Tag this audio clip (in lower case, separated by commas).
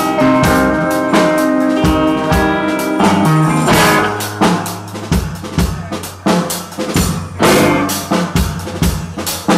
hi-hat, snare drum, drum, drum kit, rimshot, percussion, bass drum, cymbal